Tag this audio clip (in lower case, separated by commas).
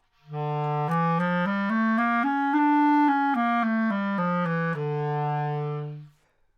musical instrument, music, woodwind instrument